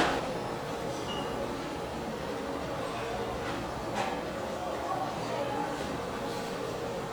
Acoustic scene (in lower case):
restaurant